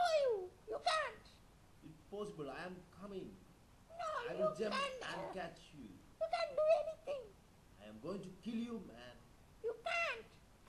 A dog whimpers and a man is talking